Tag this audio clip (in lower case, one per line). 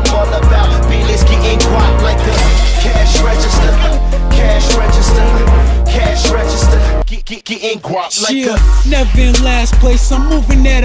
music